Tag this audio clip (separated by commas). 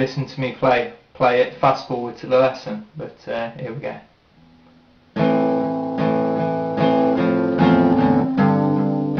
Guitar, Plucked string instrument, Acoustic guitar, Strum, Music, Speech, Musical instrument